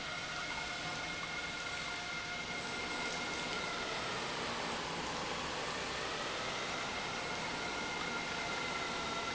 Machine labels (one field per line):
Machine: pump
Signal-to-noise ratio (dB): -6 dB